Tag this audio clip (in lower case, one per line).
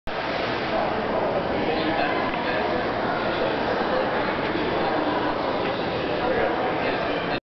speech